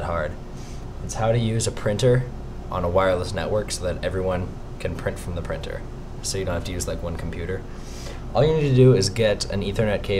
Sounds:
speech

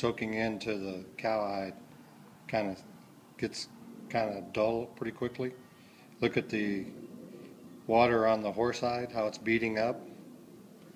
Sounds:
speech

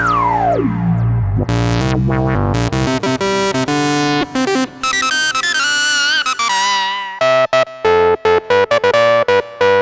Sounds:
playing synthesizer

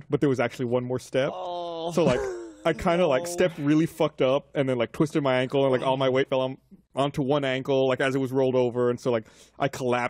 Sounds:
speech

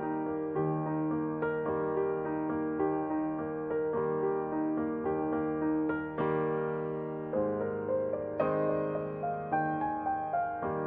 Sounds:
music

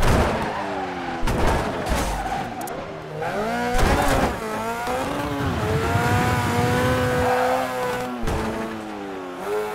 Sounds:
car
car passing by
vehicle

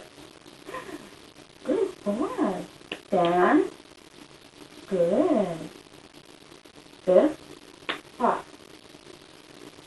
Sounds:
speech

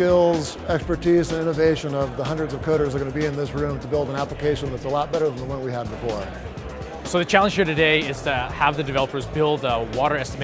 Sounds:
speech
music

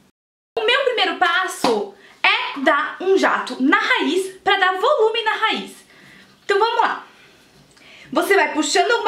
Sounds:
speech

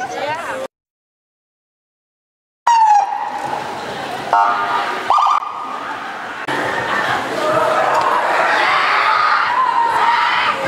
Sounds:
speech

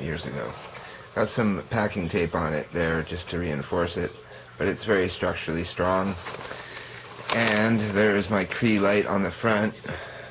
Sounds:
speech

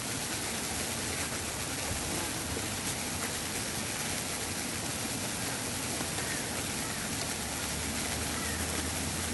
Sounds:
insect

